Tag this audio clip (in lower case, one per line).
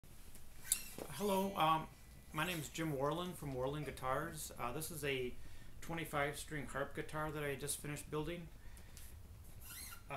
speech